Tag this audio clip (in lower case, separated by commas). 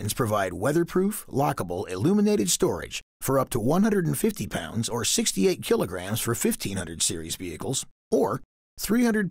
speech